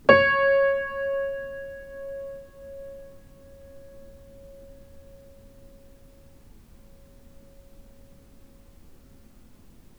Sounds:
keyboard (musical)
music
musical instrument
piano

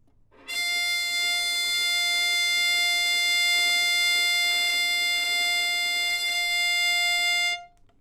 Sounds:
music
musical instrument
bowed string instrument

